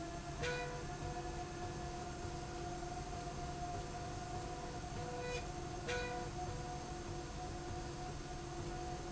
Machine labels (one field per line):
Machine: slide rail